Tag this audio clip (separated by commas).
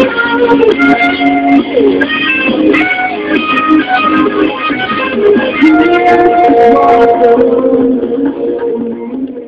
Music, Guitar, Plucked string instrument, Acoustic guitar, Musical instrument